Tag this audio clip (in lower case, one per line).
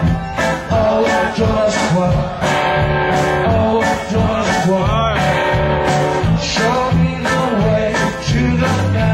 music